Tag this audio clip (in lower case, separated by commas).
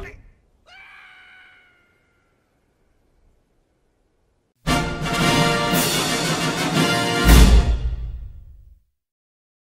television, music